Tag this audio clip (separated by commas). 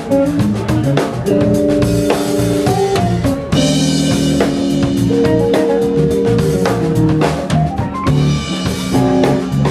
Music, Speech